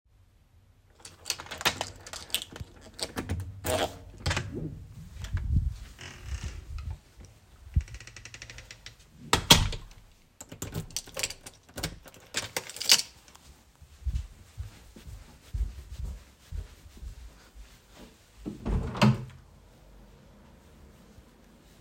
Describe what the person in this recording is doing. I unlocked my door, opened it, got into my room, closed the door and locked it. Then I walked across the room and finally, opened the window.